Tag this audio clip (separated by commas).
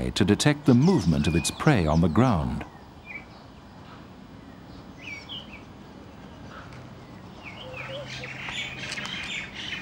Speech, Bird